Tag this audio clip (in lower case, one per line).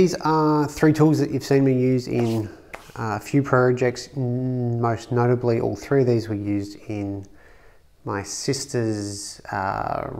speech